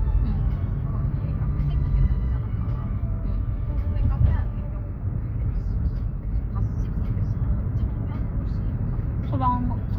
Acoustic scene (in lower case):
car